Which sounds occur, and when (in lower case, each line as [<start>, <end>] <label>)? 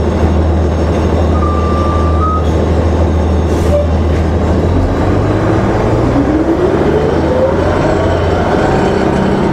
[0.00, 9.52] bus
[1.33, 2.44] tire squeal
[3.64, 3.95] air brake
[5.02, 9.52] vroom